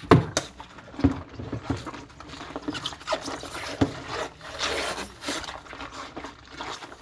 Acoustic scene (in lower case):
kitchen